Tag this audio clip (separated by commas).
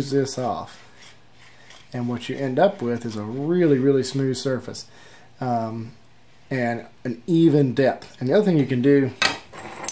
Filing (rasp), Rub